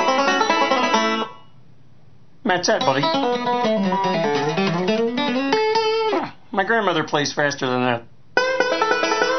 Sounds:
music, speech

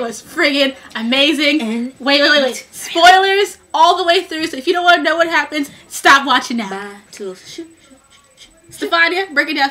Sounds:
speech

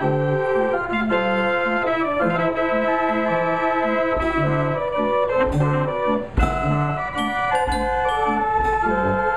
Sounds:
hammond organ, organ

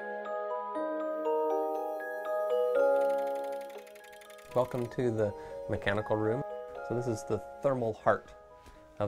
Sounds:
speech, music, glockenspiel

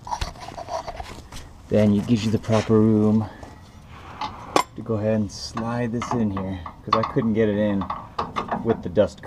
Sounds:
speech

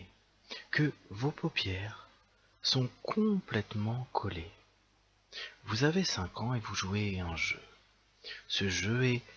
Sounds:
speech

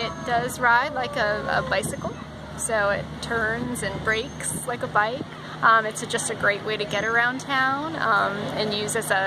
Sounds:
speech

